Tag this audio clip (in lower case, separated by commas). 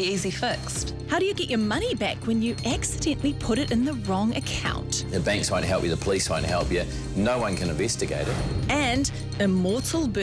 music, speech